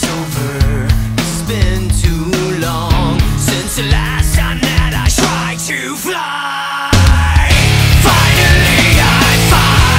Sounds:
exciting music, music

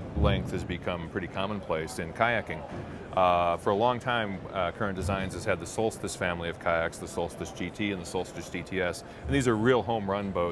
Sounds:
speech

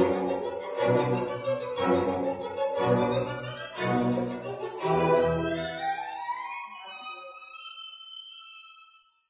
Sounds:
musical instrument, fiddle, music

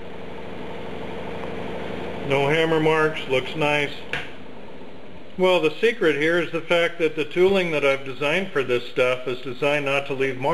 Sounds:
speech

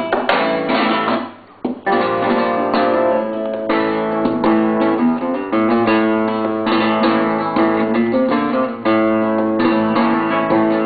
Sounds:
musical instrument, guitar, flamenco, plucked string instrument, music

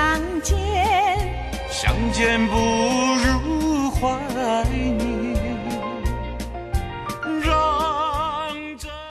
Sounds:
music

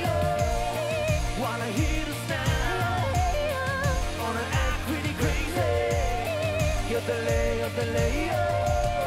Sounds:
yodelling

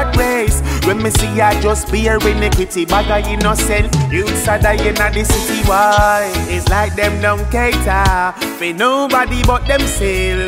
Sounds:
music

